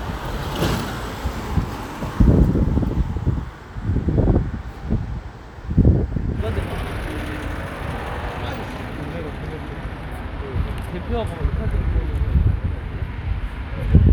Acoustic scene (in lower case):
street